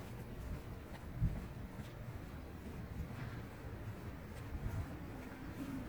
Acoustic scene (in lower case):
residential area